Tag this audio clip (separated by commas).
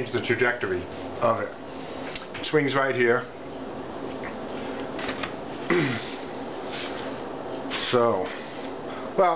Speech, inside a small room